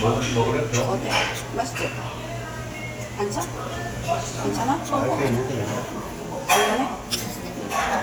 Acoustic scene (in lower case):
restaurant